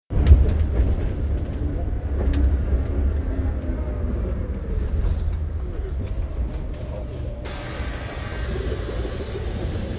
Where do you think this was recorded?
on a bus